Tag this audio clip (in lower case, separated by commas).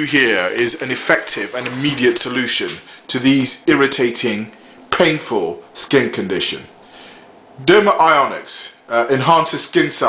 speech